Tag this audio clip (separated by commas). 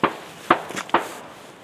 Explosion, gunfire